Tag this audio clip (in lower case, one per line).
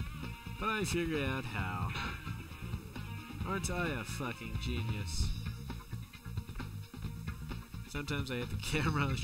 speech
music